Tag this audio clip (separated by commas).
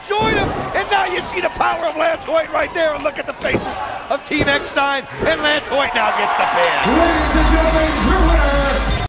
Slam, Speech